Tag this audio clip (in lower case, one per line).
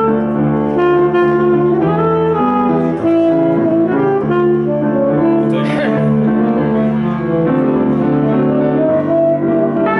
brass instrument
saxophone